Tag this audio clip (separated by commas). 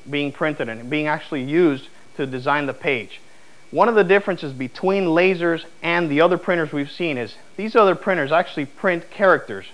Speech